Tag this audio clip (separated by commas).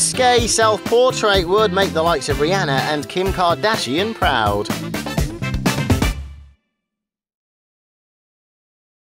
Speech, Music